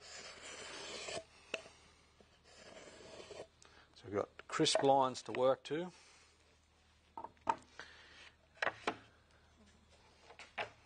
Two light rasping noises followed by a male voice talking